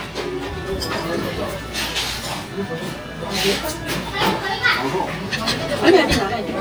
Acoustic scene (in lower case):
restaurant